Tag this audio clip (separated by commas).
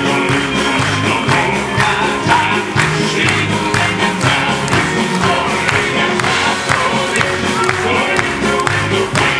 Crowd